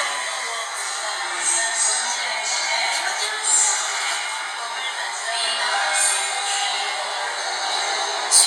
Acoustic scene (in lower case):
subway train